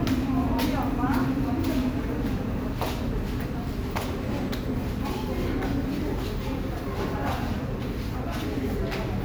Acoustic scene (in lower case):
subway station